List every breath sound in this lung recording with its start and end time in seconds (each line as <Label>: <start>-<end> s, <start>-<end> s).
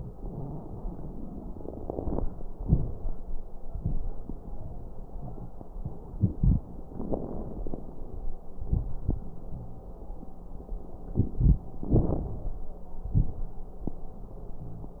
Inhalation: 6.89-8.36 s, 11.87-12.61 s
Exhalation: 8.58-9.39 s, 13.07-13.57 s
Wheeze: 9.50-9.90 s, 14.63-15.00 s
Crackles: 6.89-8.36 s, 8.58-9.39 s, 11.87-12.61 s, 13.07-13.57 s